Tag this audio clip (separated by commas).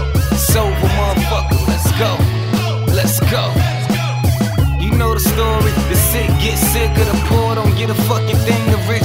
Music